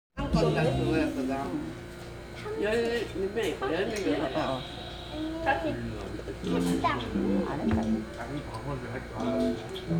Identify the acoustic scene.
crowded indoor space